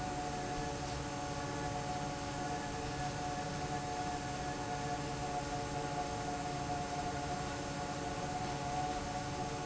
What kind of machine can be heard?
fan